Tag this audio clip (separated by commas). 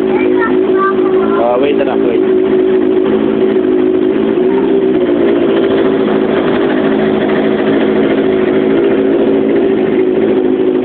Speech